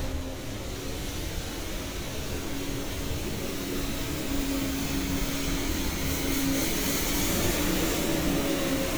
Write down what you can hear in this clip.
large-sounding engine